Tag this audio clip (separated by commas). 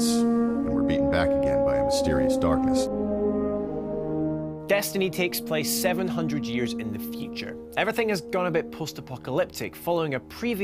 Music, Speech, French horn